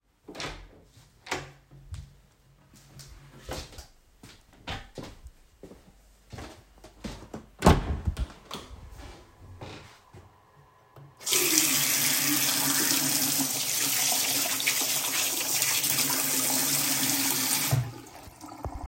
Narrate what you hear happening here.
I opened my room door, walked to the bathroom, opened the bathroom door and washed my hand.